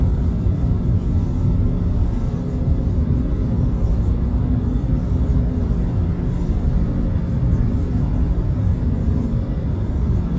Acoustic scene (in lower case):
bus